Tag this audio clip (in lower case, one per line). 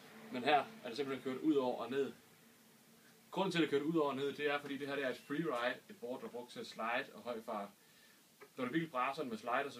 speech